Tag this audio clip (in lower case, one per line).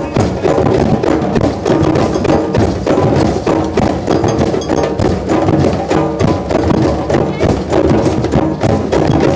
musical instrument
bass drum
music
drum
speech